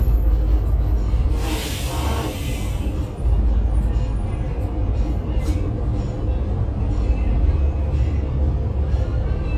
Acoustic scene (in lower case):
bus